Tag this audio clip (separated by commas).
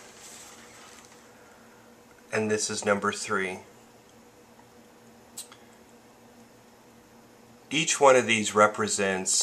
Speech, inside a small room